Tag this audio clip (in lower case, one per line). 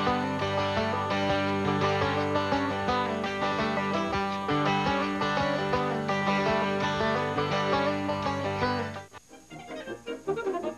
music